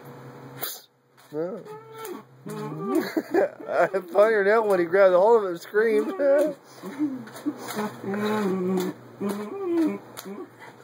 Man whistles and talks to a dog that's whining and begging